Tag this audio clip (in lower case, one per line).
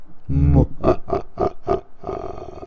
laughter
human voice